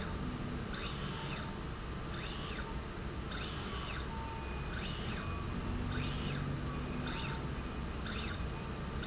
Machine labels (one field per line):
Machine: slide rail